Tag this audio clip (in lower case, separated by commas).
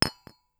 glass, chink